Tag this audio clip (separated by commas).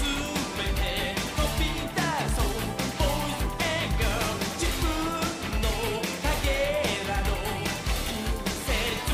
Music